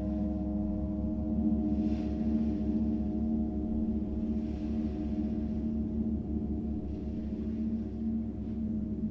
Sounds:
sound effect

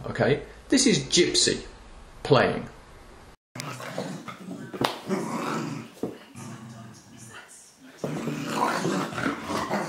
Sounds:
dog, whimper (dog), animal, speech, pets

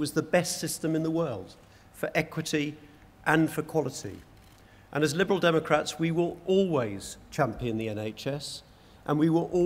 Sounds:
male speech, speech

